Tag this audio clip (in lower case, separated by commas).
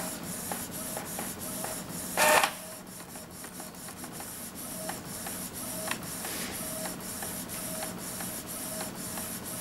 printer, printer printing